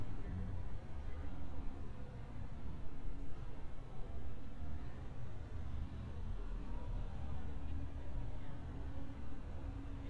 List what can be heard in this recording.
large-sounding engine, person or small group talking